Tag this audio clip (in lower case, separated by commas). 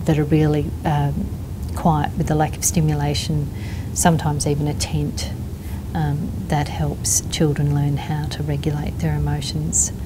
speech, inside a small room